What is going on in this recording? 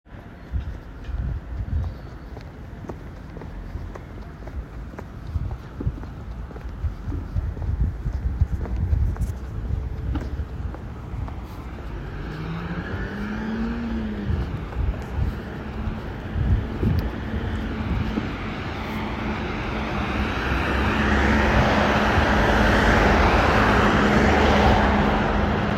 I was walking to Hofer then stop at traffice light and waiting for to go red meantime light is still green ,cars are passing throught infront of me.